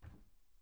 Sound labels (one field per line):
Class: cupboard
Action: opening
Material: wooden